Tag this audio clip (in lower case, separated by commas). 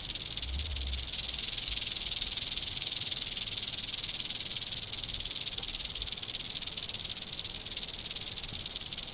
snake rattling